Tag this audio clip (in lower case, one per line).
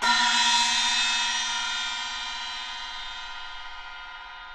crash cymbal
musical instrument
cymbal
percussion
music